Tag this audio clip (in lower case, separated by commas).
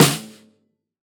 snare drum, music, drum, musical instrument, percussion